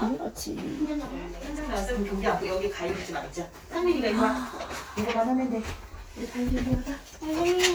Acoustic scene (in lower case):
crowded indoor space